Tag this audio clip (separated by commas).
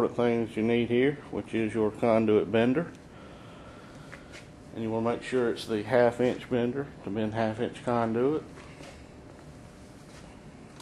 Speech